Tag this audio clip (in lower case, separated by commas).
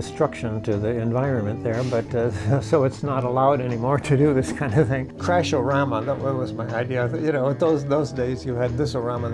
speech, music